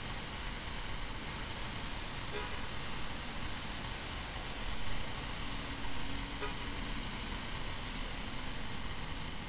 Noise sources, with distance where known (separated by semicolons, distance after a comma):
unidentified alert signal